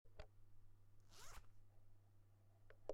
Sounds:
home sounds, zipper (clothing)

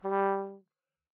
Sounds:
music, musical instrument, brass instrument

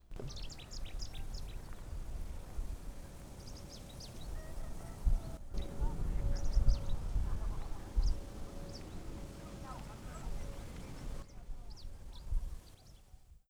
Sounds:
wild animals, bird, bird vocalization, animal

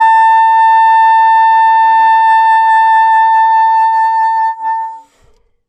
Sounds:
music, wind instrument, musical instrument

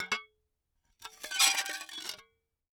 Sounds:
home sounds, dishes, pots and pans

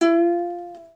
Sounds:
plucked string instrument, music, musical instrument

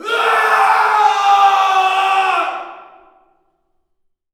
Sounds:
human voice, screaming

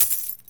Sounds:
domestic sounds, coin (dropping)

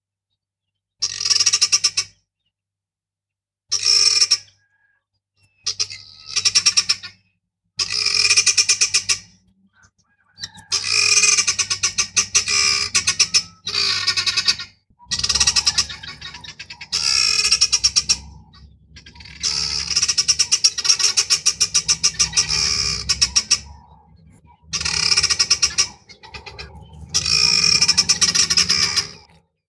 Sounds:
bird vocalization, bird, animal, wild animals

